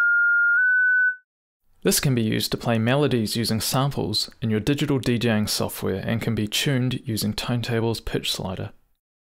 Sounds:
speech

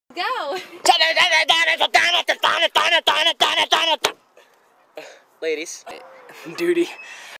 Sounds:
speech

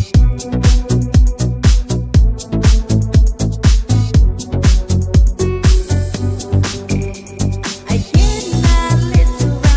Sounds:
disco

